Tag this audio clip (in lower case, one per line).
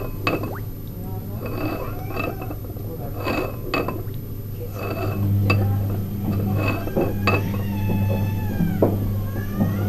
speech